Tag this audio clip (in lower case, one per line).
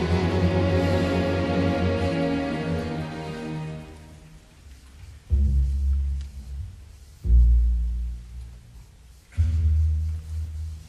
music